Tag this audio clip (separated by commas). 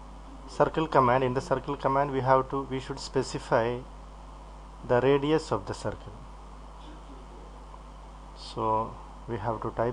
Speech